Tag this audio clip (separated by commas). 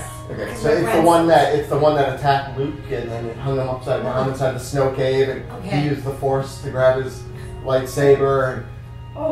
Music, Speech